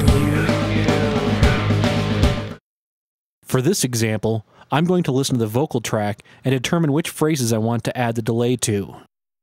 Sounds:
music
speech

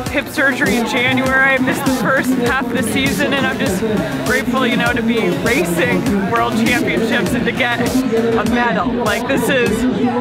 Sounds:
music
speech

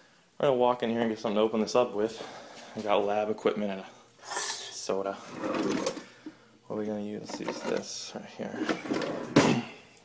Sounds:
speech
inside a small room

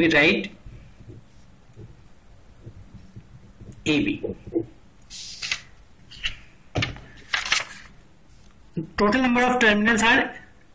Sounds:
inside a small room
speech

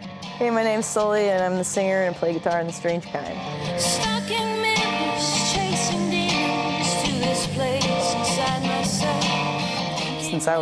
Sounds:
music
speech

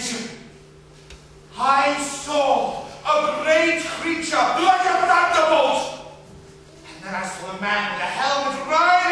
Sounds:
speech

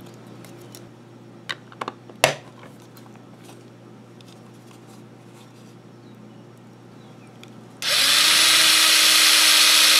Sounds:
tools

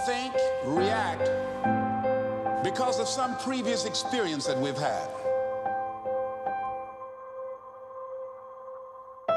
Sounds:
man speaking
speech
music
narration

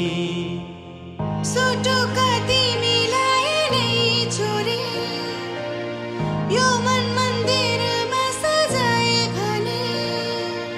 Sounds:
music

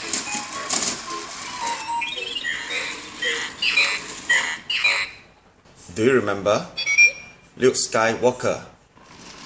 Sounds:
music
speech

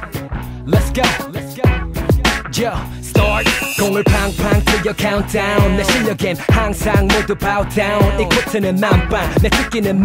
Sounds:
music

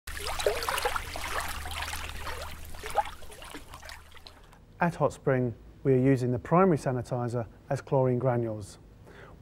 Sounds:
speech

